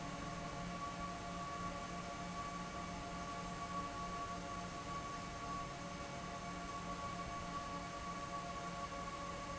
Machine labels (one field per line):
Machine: fan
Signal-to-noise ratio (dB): 0 dB